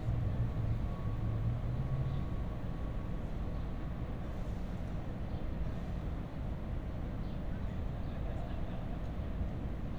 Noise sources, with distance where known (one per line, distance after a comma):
medium-sounding engine, far
person or small group talking, far